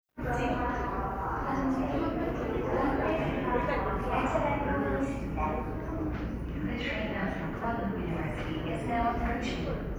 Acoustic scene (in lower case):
subway station